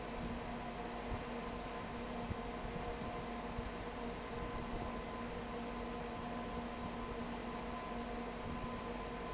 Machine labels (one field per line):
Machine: fan